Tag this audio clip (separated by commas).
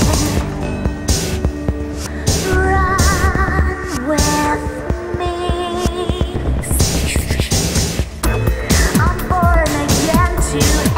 Music